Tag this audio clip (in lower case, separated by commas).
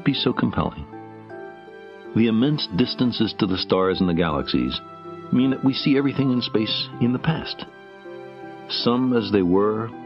music, speech, man speaking